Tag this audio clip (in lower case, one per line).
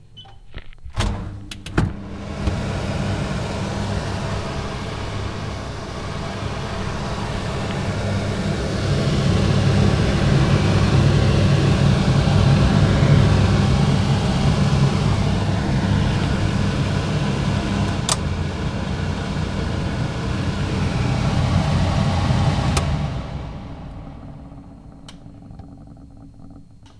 mechanisms
mechanical fan